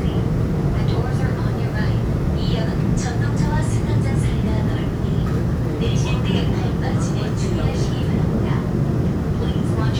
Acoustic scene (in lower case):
subway train